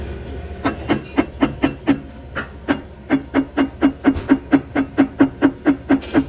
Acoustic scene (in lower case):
kitchen